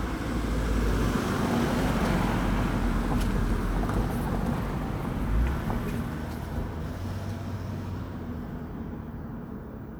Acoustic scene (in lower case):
residential area